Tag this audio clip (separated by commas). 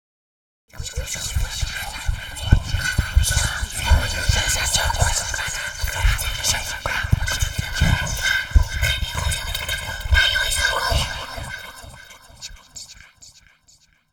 Whispering, Human voice